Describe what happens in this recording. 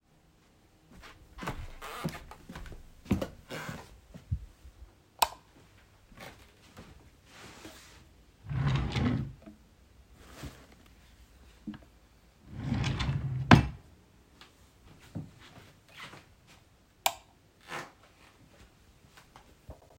I walked into my bedroom, turned on the light, walked to my wardrobe, opened a drawer, took some clothes out and closed the drawer again. After that I turned of the light and left the room.